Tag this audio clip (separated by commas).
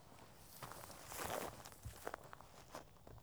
footsteps